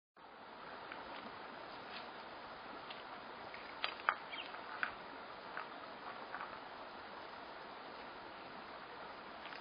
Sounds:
Animal

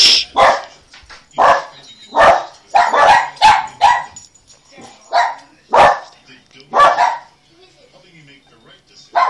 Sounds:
Bow-wow, Dog, canids, Bark, dog bow-wow

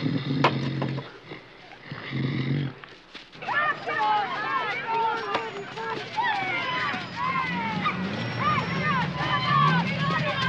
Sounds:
Speech, outside, urban or man-made, Roar

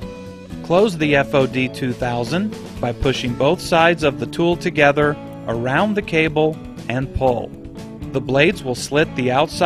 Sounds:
Music, Speech

